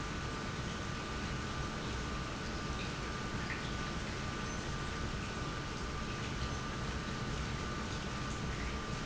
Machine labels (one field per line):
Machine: pump